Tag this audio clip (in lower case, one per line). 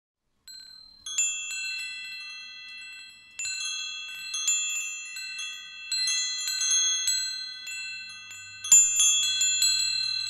chime
wind chime